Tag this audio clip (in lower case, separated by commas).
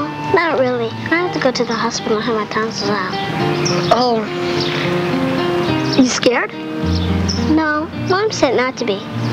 speech, music